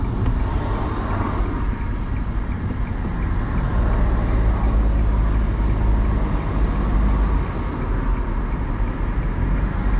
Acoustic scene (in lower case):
car